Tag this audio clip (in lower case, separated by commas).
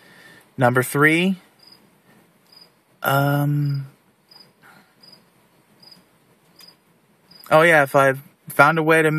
speech, outside, rural or natural